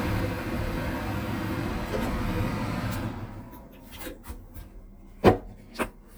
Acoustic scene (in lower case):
kitchen